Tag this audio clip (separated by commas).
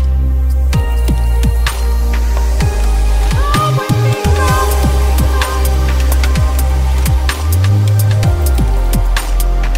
Ambient music, Music